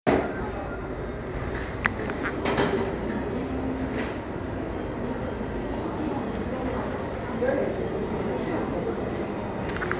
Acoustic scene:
cafe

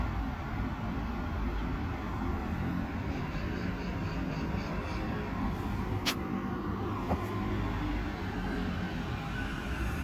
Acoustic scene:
street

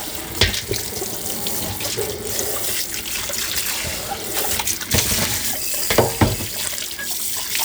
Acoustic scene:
kitchen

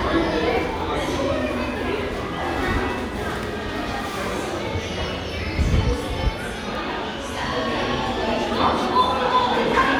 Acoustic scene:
crowded indoor space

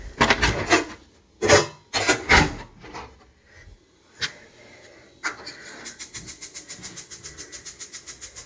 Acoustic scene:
kitchen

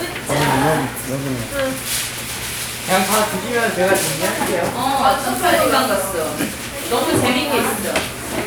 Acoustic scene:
crowded indoor space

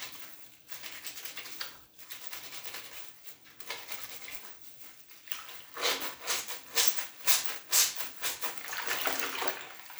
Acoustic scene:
restroom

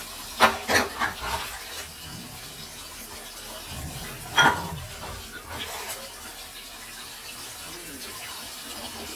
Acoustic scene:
kitchen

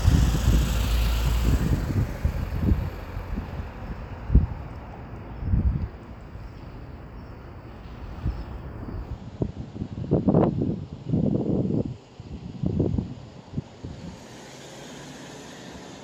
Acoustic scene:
street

